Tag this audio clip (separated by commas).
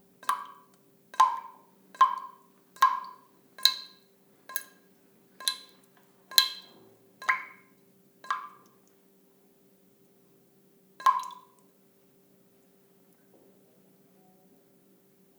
Liquid, Domestic sounds, faucet, Water, Rain, Drip